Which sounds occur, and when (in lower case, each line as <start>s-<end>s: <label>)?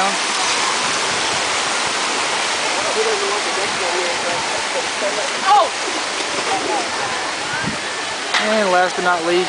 0.0s-0.2s: human voice
0.0s-9.4s: waterfall
0.0s-9.4s: wind
2.7s-5.2s: male speech
4.8s-4.8s: wind
5.4s-5.7s: human voice
6.3s-6.8s: scrape
6.9s-7.6s: human voice
7.6s-7.8s: generic impact sounds
8.3s-8.4s: generic impact sounds
8.4s-9.4s: male speech